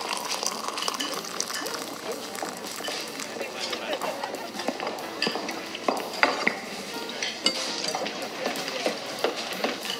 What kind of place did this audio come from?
restaurant